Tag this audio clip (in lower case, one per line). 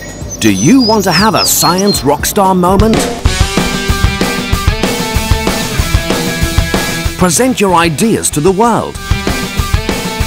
speech
music